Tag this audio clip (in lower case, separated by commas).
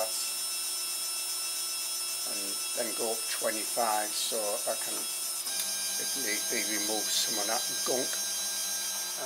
speech